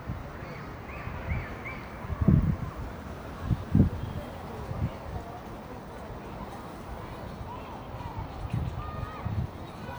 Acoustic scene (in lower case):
residential area